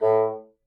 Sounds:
musical instrument, woodwind instrument, music

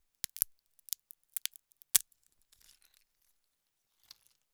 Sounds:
crack

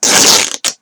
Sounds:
tearing

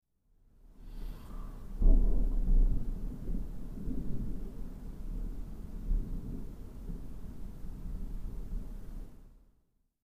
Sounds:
thunderstorm, thunder

